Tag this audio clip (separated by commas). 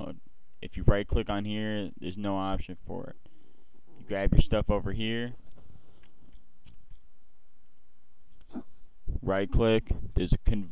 Speech